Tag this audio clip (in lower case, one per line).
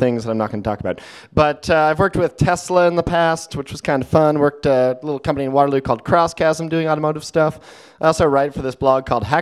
speech